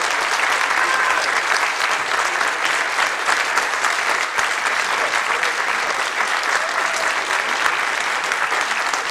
Continuous applause